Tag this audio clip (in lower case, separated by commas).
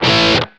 plucked string instrument, music, guitar, musical instrument